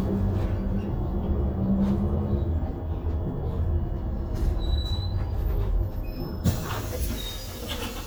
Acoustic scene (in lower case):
bus